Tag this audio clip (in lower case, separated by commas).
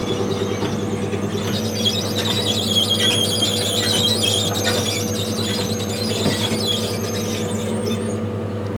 squeak